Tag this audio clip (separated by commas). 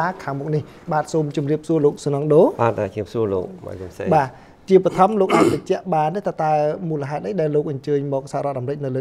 Speech